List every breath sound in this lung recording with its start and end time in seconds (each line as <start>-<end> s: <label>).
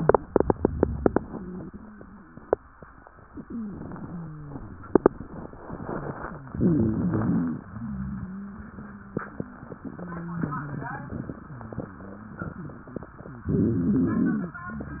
3.40-4.71 s: wheeze
6.47-7.69 s: inhalation
6.47-7.69 s: wheeze
7.70-12.52 s: wheeze
13.49-14.71 s: inhalation
13.49-14.71 s: wheeze